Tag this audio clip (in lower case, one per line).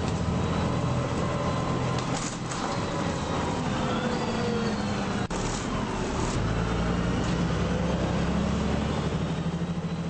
vehicle